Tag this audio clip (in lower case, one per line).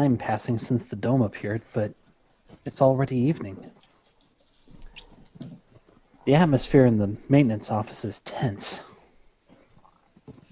speech